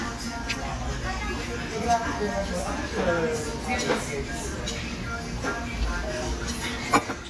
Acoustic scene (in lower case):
restaurant